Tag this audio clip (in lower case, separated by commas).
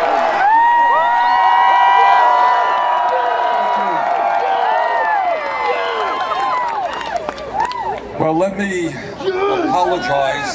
male speech, speech